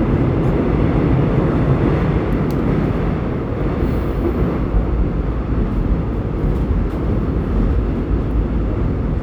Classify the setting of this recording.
subway train